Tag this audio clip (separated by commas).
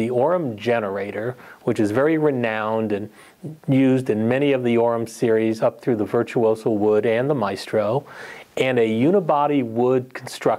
Speech